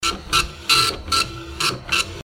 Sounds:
printer, mechanisms

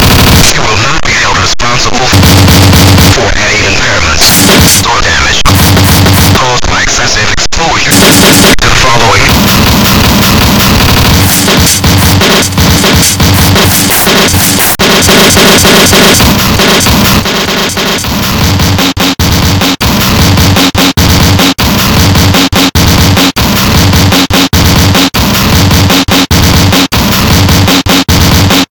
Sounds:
human voice, male speech, speech

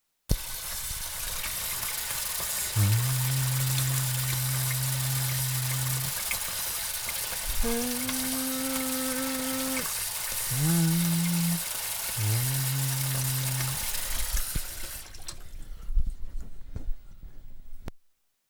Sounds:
human voice, singing

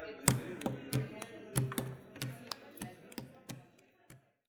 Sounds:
hands, wood

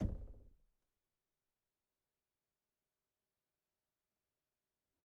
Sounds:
knock, door, home sounds

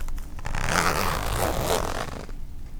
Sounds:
zipper (clothing), home sounds

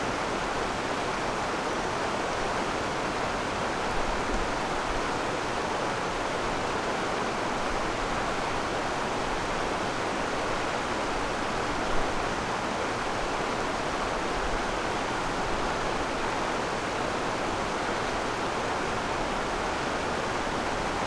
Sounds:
stream, water

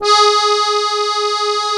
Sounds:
accordion, musical instrument, music

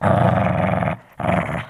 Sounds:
growling, pets, animal, dog

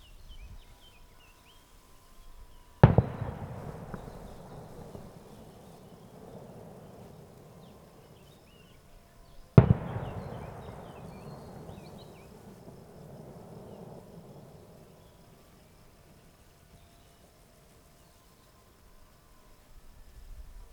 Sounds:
explosion, fireworks

